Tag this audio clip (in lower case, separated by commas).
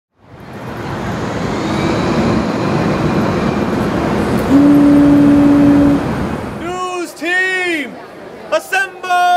aircraft